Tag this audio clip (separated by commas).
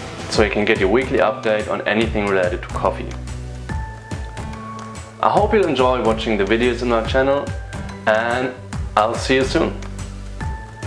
Music, Speech